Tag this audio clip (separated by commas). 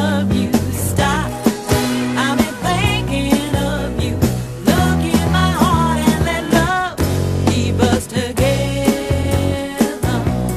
Music, Rock music